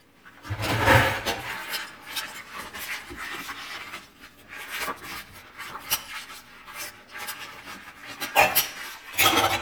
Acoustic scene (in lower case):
kitchen